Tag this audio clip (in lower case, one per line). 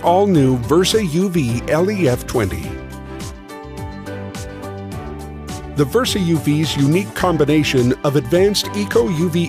music
speech